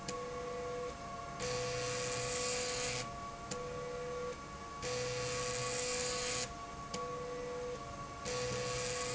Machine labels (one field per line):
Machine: slide rail